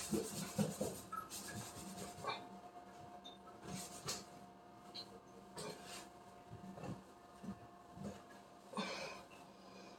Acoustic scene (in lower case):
restroom